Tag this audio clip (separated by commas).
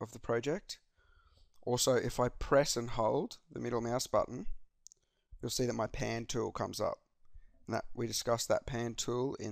Speech